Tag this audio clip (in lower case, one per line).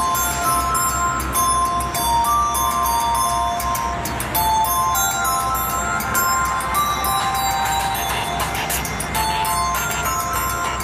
music